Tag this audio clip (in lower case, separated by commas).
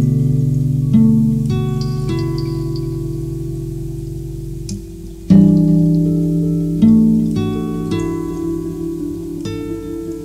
raindrop, music